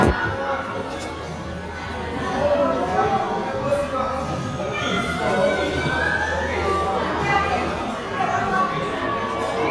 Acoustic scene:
crowded indoor space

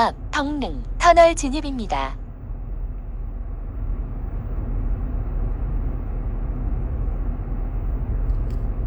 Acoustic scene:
car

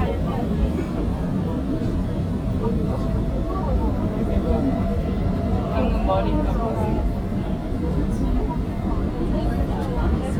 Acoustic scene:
subway train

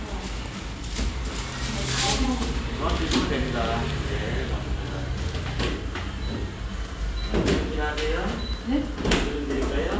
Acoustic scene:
cafe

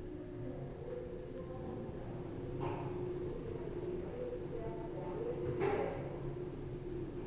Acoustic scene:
elevator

